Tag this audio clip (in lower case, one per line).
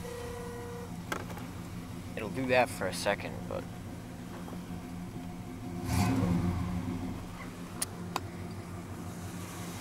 engine
speech